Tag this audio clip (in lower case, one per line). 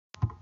thud